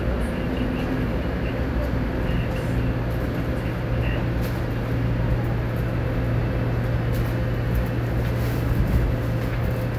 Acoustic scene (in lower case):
subway station